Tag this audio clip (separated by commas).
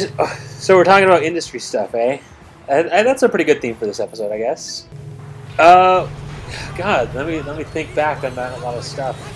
Speech